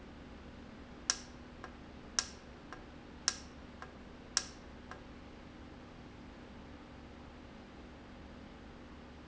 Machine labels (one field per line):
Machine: valve